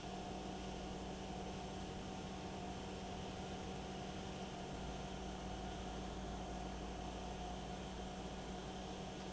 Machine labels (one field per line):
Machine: pump